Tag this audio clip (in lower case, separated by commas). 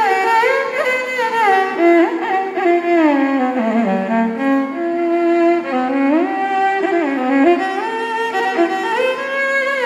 musical instrument, music, fiddle